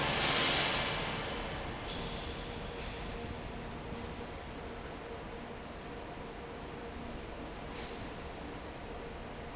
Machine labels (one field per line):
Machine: fan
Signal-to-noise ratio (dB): -6 dB